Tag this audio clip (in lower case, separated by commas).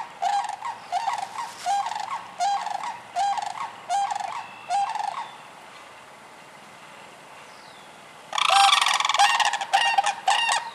bird